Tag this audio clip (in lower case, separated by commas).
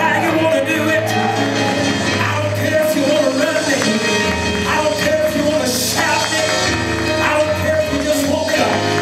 music